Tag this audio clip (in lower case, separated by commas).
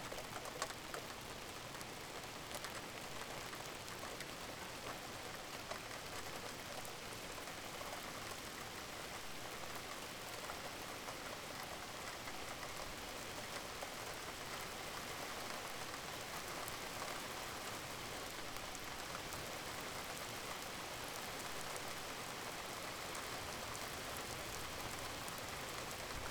rain, water